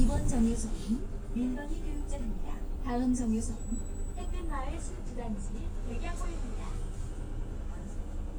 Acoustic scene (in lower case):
bus